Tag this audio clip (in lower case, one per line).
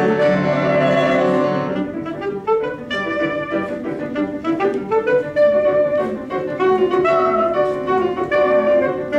saxophone
piano
music